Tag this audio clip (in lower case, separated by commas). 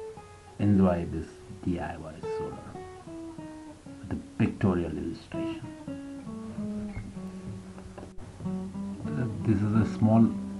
music, speech